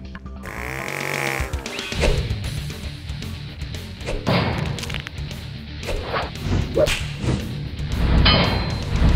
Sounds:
Music

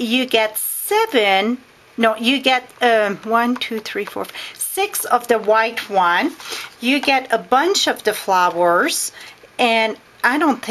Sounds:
Speech

